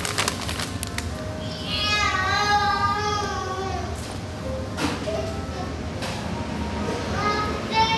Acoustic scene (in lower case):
cafe